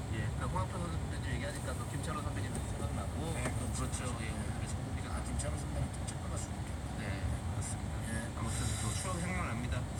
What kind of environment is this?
car